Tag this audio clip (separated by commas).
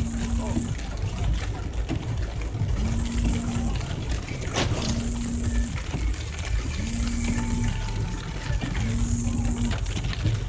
Music, Vehicle, Rain